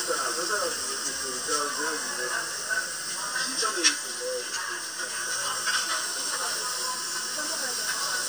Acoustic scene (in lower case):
restaurant